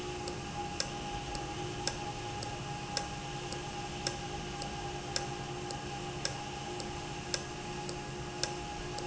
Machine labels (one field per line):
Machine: valve